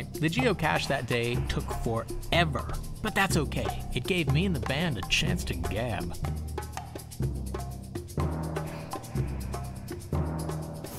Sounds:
music, speech

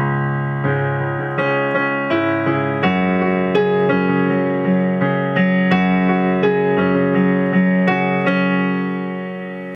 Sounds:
music

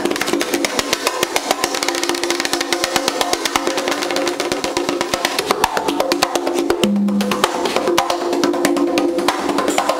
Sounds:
drum, percussion

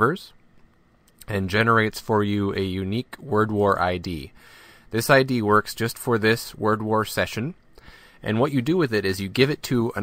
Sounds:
speech

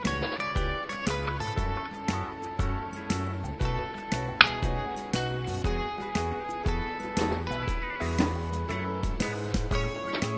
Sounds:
inside a small room, music

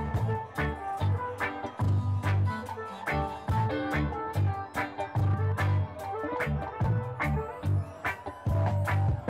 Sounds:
singing, music

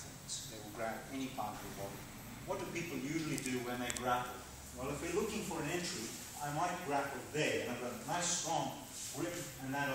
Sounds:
speech

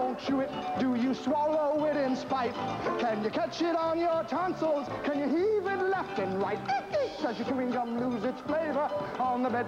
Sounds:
music

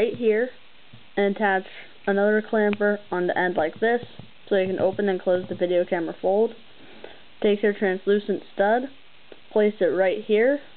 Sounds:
speech

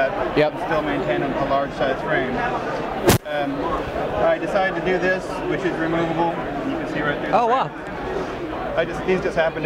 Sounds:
speech

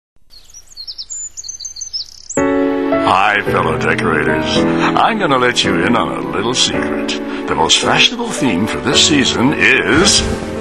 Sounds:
speech, chirp, music, bird song

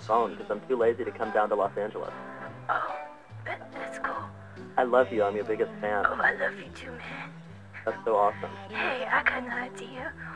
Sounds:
music, speech

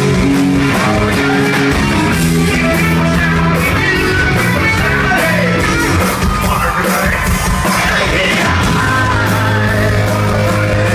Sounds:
singing, inside a large room or hall, music

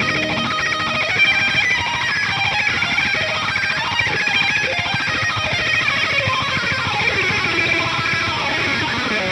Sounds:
heavy metal, music

